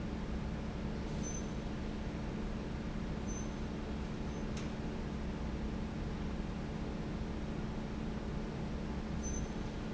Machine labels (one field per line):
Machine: fan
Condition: normal